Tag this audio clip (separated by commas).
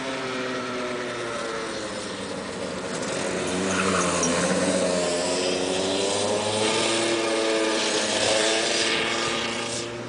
Vehicle, Car, outside, urban or man-made